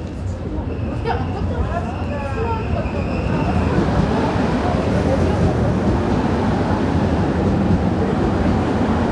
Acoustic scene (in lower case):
subway station